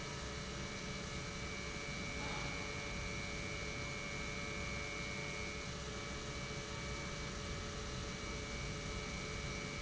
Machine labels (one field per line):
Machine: pump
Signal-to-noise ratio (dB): 0 dB